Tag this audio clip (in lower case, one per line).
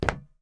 footsteps